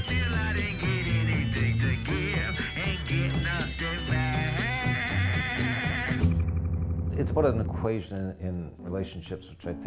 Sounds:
music, speech

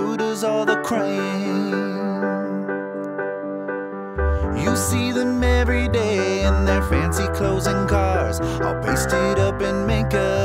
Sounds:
music, happy music

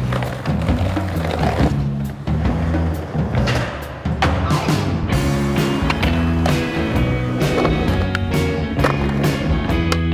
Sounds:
music, skateboard

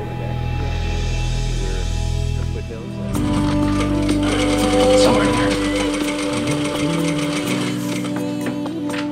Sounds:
speech, music

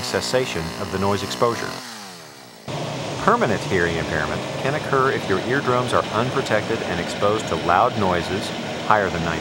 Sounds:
vehicle, speech

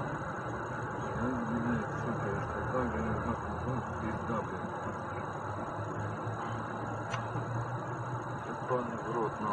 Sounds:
speech, vehicle

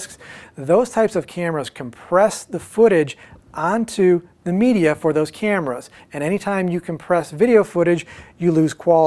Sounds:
speech

